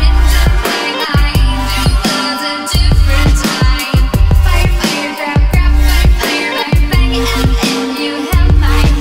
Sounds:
music

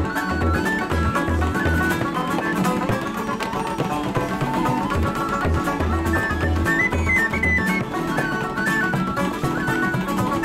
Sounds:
music

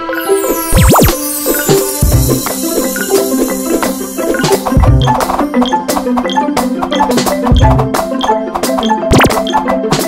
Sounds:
percussion

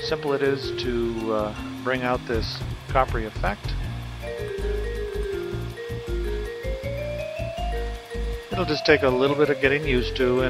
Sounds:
music, speech

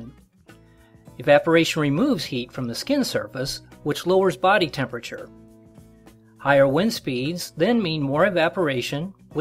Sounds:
speech, music

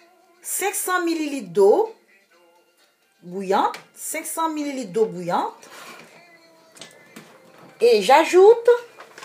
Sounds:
speech, music

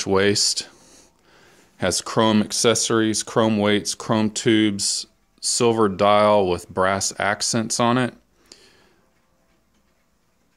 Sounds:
speech

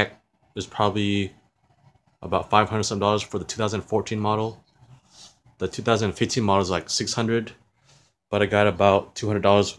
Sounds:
speech

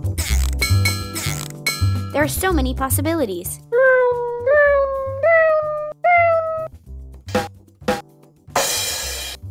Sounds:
music, speech

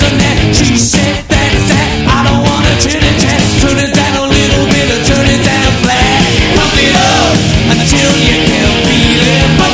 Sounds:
music

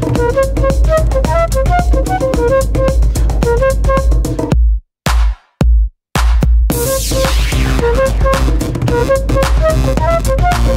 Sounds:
electronica, music

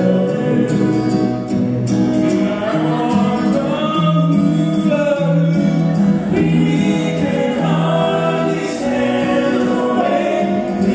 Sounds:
music

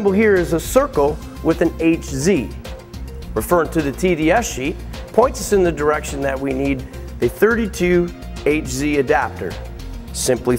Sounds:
speech, music

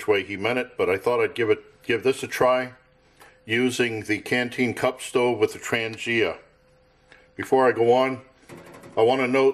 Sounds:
speech

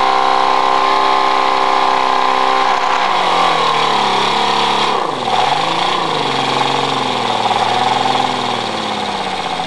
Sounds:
medium engine (mid frequency), engine

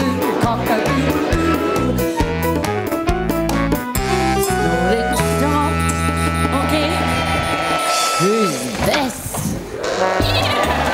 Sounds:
speech, music, female singing

